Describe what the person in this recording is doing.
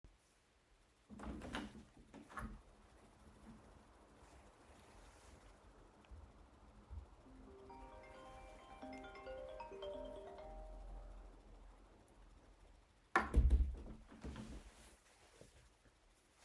I open the window, I receive a call. I close the window